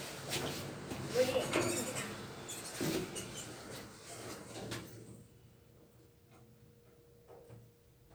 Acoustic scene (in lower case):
elevator